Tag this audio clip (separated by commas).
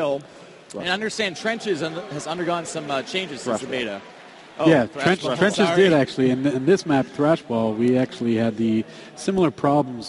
Speech